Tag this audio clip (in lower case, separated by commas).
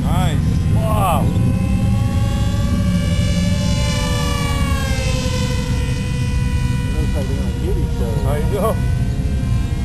speech